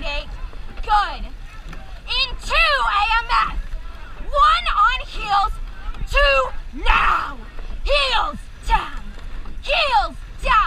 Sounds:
Speech, kayak

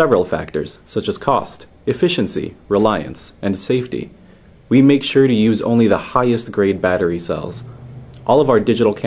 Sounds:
Speech

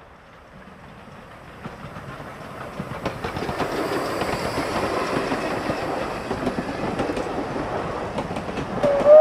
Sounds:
outside, rural or natural, Rail transport, Vehicle, Train whistle, Train

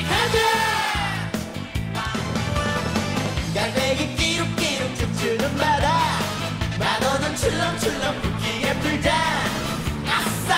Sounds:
Music, Theme music

